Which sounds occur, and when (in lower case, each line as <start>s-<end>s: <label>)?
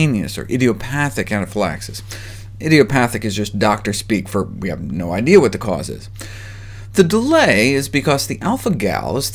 0.0s-1.9s: man speaking
0.0s-9.3s: mechanisms
2.0s-2.5s: breathing
2.1s-2.1s: tick
2.5s-6.0s: man speaking
6.2s-6.2s: tick
6.2s-6.9s: breathing
6.9s-9.3s: man speaking
7.1s-7.1s: tick